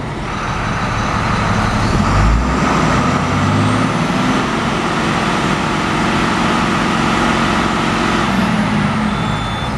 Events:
[0.00, 9.75] heavy engine (low frequency)
[2.12, 8.56] revving
[9.03, 9.66] reversing beeps

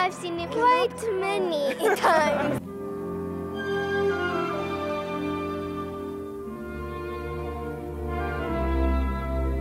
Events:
[0.00, 1.74] child speech
[0.01, 9.60] music
[1.44, 2.56] laughter
[1.92, 2.55] child speech

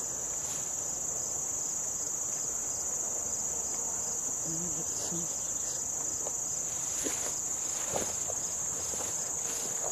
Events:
[0.00, 0.09] cricket
[0.00, 9.91] background noise
[0.27, 0.46] cricket
[0.75, 0.89] cricket
[1.14, 1.28] cricket
[1.50, 1.66] cricket
[1.87, 2.02] cricket
[2.24, 2.40] cricket
[2.64, 2.81] cricket
[3.22, 3.34] cricket
[3.58, 3.74] cricket
[3.94, 4.07] cricket
[4.31, 5.27] female speech
[4.36, 4.56] cricket
[4.83, 5.02] cricket
[5.21, 5.34] cricket
[5.64, 5.78] cricket
[6.01, 6.19] cricket
[6.13, 6.35] generic impact sounds
[6.38, 6.58] cricket
[6.82, 6.98] cricket
[6.97, 7.33] generic impact sounds
[7.23, 7.37] cricket
[7.58, 7.76] cricket
[7.83, 8.03] generic impact sounds
[7.95, 8.13] cricket
[8.19, 8.30] generic impact sounds
[8.33, 8.55] cricket
[8.73, 8.90] cricket
[8.87, 9.08] generic impact sounds
[9.12, 9.27] cricket
[9.47, 9.63] cricket
[9.76, 9.91] generic impact sounds
[9.84, 9.91] cricket

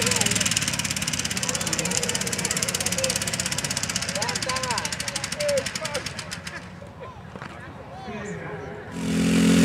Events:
[4.11, 8.92] hubbub
[6.46, 7.26] laughter
[7.91, 8.83] child speech
[8.86, 9.64] revving
[8.93, 9.64] lawn mower

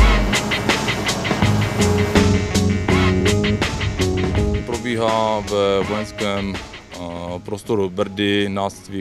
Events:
[0.00, 4.69] heavy engine (low frequency)
[0.00, 9.00] music
[4.73, 6.60] man speaking
[6.89, 8.67] man speaking
[8.90, 9.00] man speaking

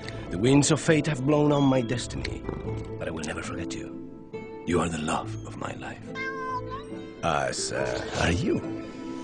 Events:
[0.00, 0.10] generic impact sounds
[0.00, 1.26] sound effect
[0.00, 9.23] music
[0.26, 2.37] speech synthesizer
[1.47, 1.89] ding
[2.17, 2.28] generic impact sounds
[2.72, 2.83] generic impact sounds
[2.95, 3.86] speech synthesizer
[3.17, 3.25] generic impact sounds
[4.64, 5.30] speech synthesizer
[5.42, 5.97] speech synthesizer
[6.11, 8.47] speech synthesizer
[7.83, 8.45] sound effect

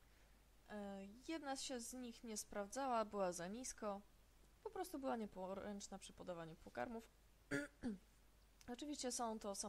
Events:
[0.00, 9.65] background noise
[0.59, 3.95] woman speaking
[4.60, 7.08] woman speaking
[7.44, 8.01] woman speaking
[8.54, 9.65] woman speaking

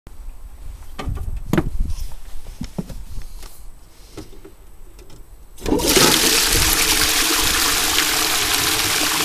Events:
[0.01, 9.24] background noise
[0.93, 1.63] generic impact sounds
[0.99, 2.29] wind noise (microphone)
[1.84, 2.04] generic impact sounds
[2.53, 2.91] generic impact sounds
[2.86, 3.34] wind noise (microphone)
[3.10, 3.23] generic impact sounds
[3.37, 3.54] generic impact sounds
[4.11, 4.50] generic impact sounds
[4.93, 5.19] generic impact sounds
[5.60, 5.72] generic impact sounds
[5.63, 9.24] toilet flush
[6.50, 7.02] wind noise (microphone)
[7.32, 7.67] wind noise (microphone)

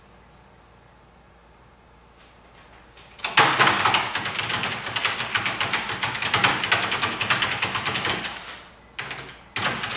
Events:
[0.00, 9.95] mechanisms
[2.13, 2.24] surface contact
[2.39, 2.76] generic impact sounds
[2.89, 8.66] computer keyboard
[8.93, 9.24] computer keyboard
[9.53, 9.95] computer keyboard

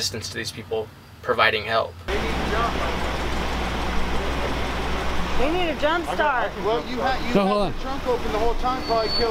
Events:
[0.00, 0.82] man speaking
[0.00, 9.30] motor vehicle (road)
[1.20, 1.86] man speaking
[2.04, 2.83] man speaking
[2.07, 9.30] conversation
[2.92, 3.56] generic impact sounds
[5.37, 6.52] woman speaking
[6.04, 7.69] man speaking
[7.83, 8.50] man speaking
[8.62, 9.06] man speaking
[8.76, 9.30] squeal
[9.17, 9.30] man speaking

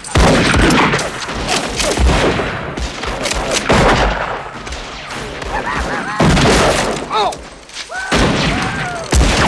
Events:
[0.00, 9.45] background noise
[0.09, 0.26] generic impact sounds
[0.11, 2.52] fusillade
[0.50, 0.69] generic impact sounds
[0.89, 1.02] generic impact sounds
[1.16, 1.28] generic impact sounds
[1.47, 1.59] generic impact sounds
[1.73, 2.00] generic impact sounds
[2.75, 4.29] fusillade
[2.96, 3.35] generic impact sounds
[3.46, 3.68] generic impact sounds
[4.64, 7.35] fusillade
[5.48, 6.26] human sounds
[6.69, 6.96] generic impact sounds
[7.05, 7.35] human sounds
[7.24, 7.39] generic impact sounds
[7.65, 7.88] generic impact sounds
[7.75, 9.45] fusillade
[7.89, 8.25] human sounds
[8.50, 9.11] human sounds
[9.05, 9.24] generic impact sounds

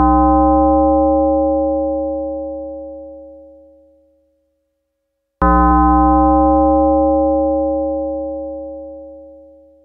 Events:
[0.00, 9.84] music

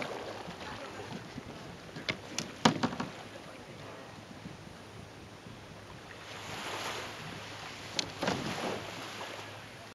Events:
[0.00, 9.92] waves
[0.00, 9.92] wind
[0.42, 0.51] generic impact sounds
[0.68, 1.05] human voice
[1.02, 1.16] generic impact sounds
[1.27, 1.39] surface contact
[1.49, 1.62] surface contact
[1.95, 2.12] generic impact sounds
[2.31, 2.39] generic impact sounds
[2.62, 3.05] generic impact sounds
[3.69, 4.09] surface contact
[7.94, 8.04] tick
[8.19, 8.36] generic impact sounds
[8.39, 8.75] scrape
[9.12, 9.25] generic impact sounds

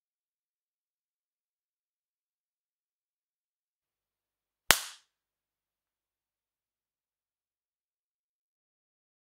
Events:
[4.67, 5.00] slap

